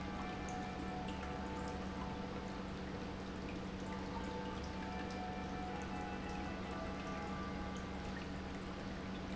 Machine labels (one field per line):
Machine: pump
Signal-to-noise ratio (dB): 0 dB